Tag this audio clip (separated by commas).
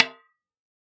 Drum, Percussion, Snare drum, Music, Musical instrument